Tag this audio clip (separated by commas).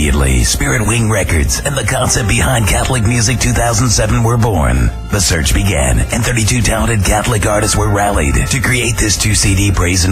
Music, Speech